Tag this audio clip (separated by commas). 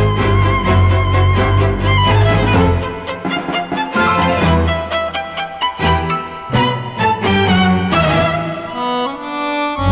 Rhythm and blues, Music